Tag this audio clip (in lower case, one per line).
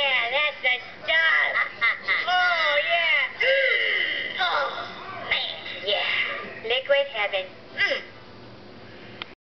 speech